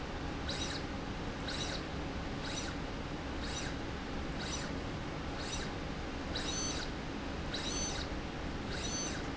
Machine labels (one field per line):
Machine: slide rail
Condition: abnormal